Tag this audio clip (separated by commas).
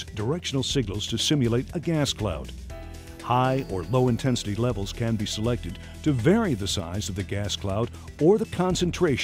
Music, Speech